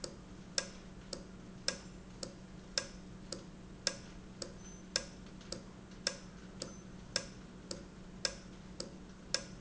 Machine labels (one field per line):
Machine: valve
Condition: normal